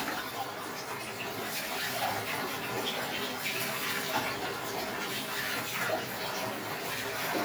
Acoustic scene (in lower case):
restroom